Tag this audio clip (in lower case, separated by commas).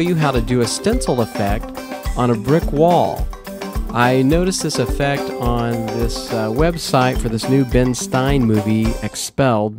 speech, music